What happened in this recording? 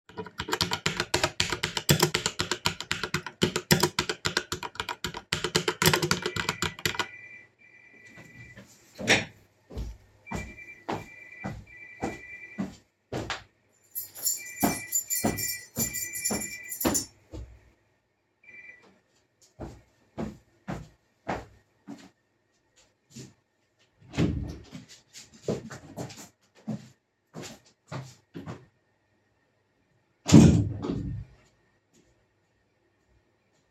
I was awaiting a delivery, whilst I was typing on a keyboard I heard my phone go off, so I got up from my chair, walked over to my keychain and I grabbed it, then I walked towards my phone to pick it up, then I walked towards the door, then I have opened the door walk into a living room and then I have shut the door.